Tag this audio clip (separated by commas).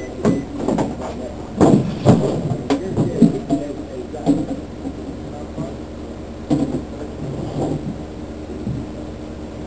inside a small room, Speech